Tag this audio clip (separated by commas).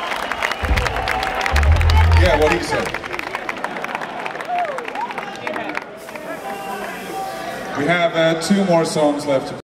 Speech